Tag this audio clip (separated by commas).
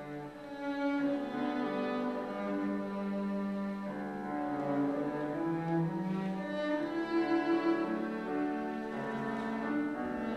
Music, Background music